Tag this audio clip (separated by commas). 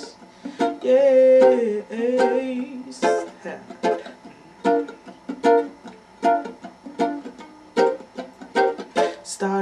Music, Plucked string instrument, Musical instrument, Ukulele, Singing